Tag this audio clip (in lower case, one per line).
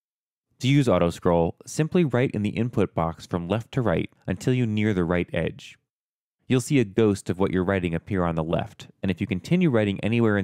speech